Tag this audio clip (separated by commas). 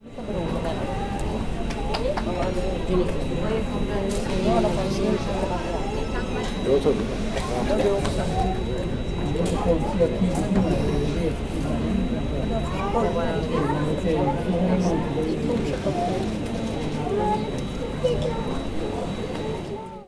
Speech, Crowd, Human voice, Human group actions, Conversation, Chatter